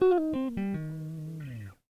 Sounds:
Musical instrument, Plucked string instrument, Music, Guitar

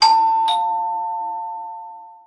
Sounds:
Door, Domestic sounds, Alarm, Doorbell

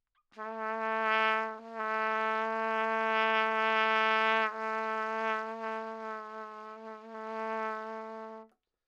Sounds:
Trumpet, Brass instrument, Musical instrument, Music

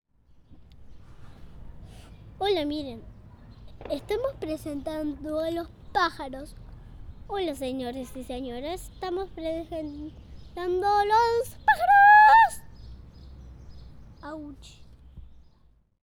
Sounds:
Speech, kid speaking, Human voice

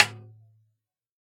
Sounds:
Music, Drum, Snare drum, Percussion, Musical instrument

